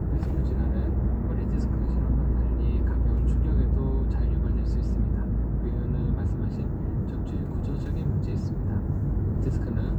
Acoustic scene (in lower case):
car